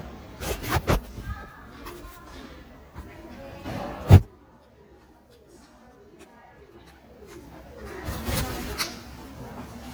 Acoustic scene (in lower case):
crowded indoor space